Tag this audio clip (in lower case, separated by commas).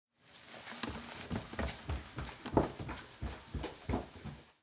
run